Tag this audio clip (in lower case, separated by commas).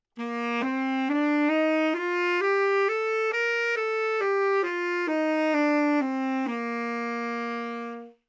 musical instrument, woodwind instrument, music